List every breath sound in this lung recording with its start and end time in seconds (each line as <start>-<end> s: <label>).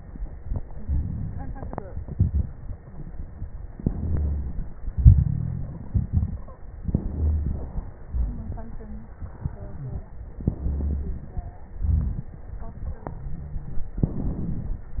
0.74-1.93 s: inhalation
0.74-1.93 s: crackles
1.95-3.66 s: exhalation
1.95-3.66 s: crackles
3.71-4.75 s: inhalation
3.71-4.75 s: crackles
4.77-6.81 s: exhalation
4.95-5.84 s: wheeze
5.62-5.92 s: stridor
6.33-6.65 s: stridor
6.80-8.10 s: inhalation
6.80-8.10 s: crackles
8.11-10.36 s: exhalation
9.73-10.10 s: wheeze
10.32-11.69 s: inhalation
10.32-11.69 s: crackles
11.71-14.01 s: exhalation
12.82-13.19 s: stridor
13.98-15.00 s: inhalation
13.98-15.00 s: crackles